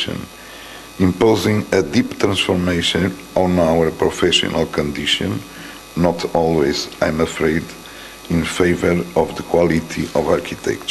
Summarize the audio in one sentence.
A man gives an address, a high pitched hum